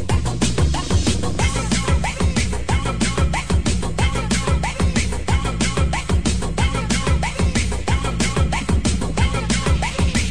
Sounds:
Music of Asia, Music, Disco

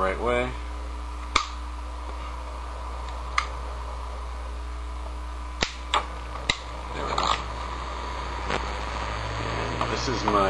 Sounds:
Speech

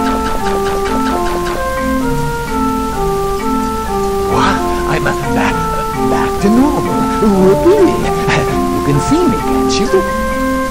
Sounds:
Speech, Music

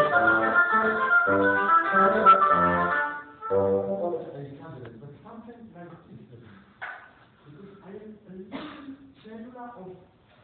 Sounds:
Classical music, Speech, Music

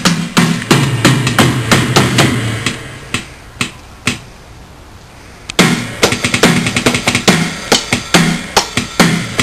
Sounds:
Music, Wood block, Percussion

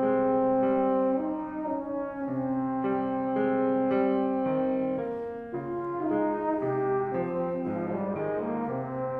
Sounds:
Musical instrument, Music

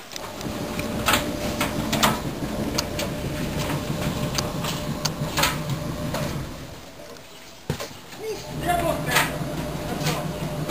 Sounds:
Speech

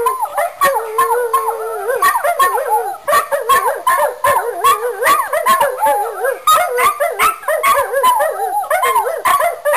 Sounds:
canids, Howl, Domestic animals, Dog, Animal

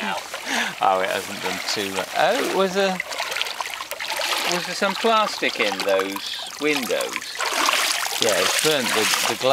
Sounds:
Speech

